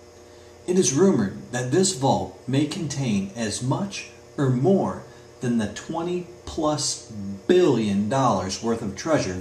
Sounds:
speech

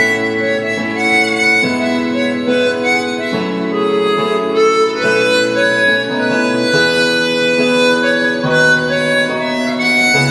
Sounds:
harmonica, wind instrument

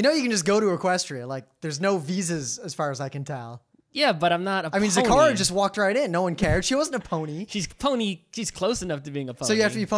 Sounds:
speech

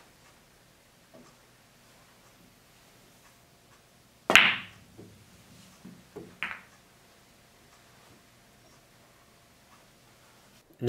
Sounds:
striking pool

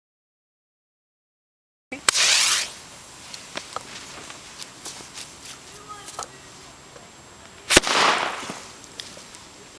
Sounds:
firecracker, speech

